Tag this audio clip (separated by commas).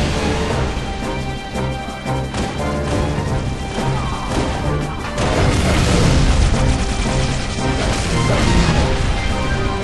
Music